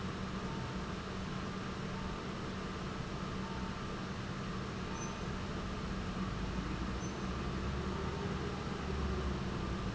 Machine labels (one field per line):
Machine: pump